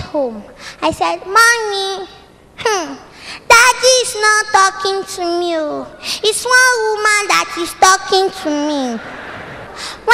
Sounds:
speech

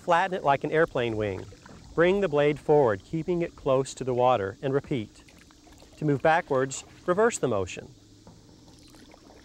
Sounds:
speech, vehicle, boat, kayak

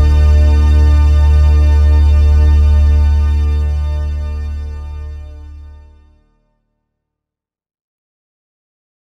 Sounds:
music

